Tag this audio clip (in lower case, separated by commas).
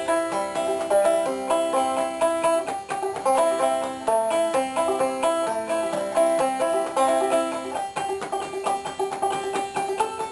music, banjo